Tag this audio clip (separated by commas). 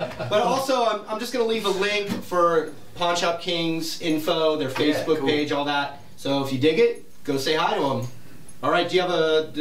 Speech